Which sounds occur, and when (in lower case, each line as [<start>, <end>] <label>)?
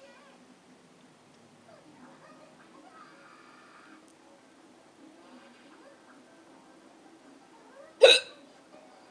[0.00, 9.10] television
[1.30, 1.39] generic impact sounds
[4.02, 4.13] clicking
[7.95, 8.61] hiccup
[8.24, 9.10] human voice